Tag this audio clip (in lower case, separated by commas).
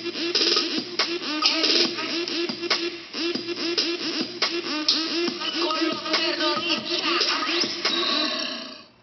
music